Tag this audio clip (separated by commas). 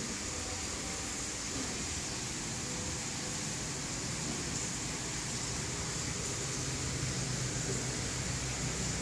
Spray